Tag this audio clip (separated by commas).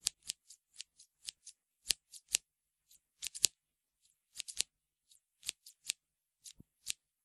home sounds, Scissors